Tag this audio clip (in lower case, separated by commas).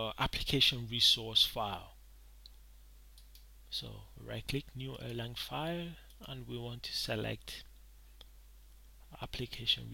clicking